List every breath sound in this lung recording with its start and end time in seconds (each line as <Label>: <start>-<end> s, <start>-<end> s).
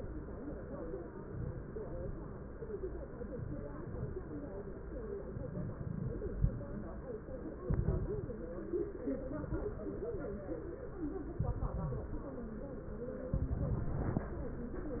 Inhalation: 7.64-8.44 s, 9.37-10.16 s, 11.40-12.20 s, 13.34-14.29 s
Crackles: 7.64-8.44 s, 9.37-10.16 s, 11.40-12.20 s, 13.34-14.29 s